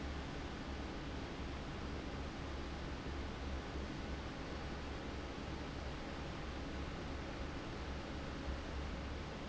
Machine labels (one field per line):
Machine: fan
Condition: abnormal